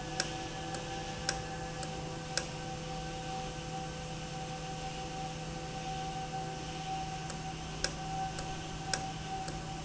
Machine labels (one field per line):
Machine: valve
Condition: normal